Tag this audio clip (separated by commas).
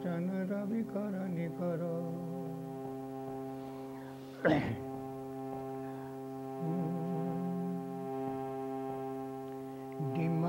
Music, Male singing